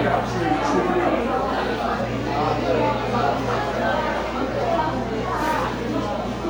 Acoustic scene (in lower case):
crowded indoor space